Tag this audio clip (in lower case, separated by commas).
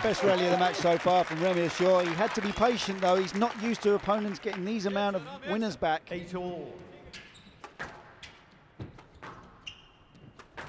playing squash